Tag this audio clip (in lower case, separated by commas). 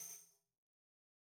musical instrument, music, tambourine, percussion